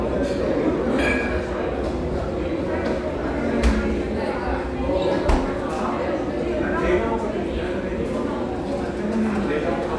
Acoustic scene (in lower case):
crowded indoor space